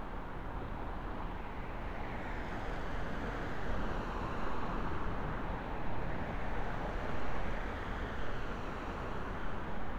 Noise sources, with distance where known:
medium-sounding engine

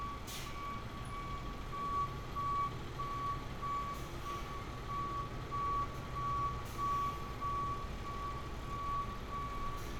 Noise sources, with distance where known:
large-sounding engine
reverse beeper, near

